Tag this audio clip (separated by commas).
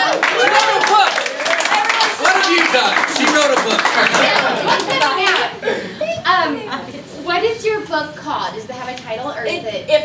Speech